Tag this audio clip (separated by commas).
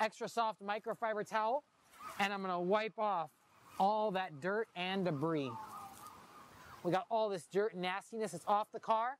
Speech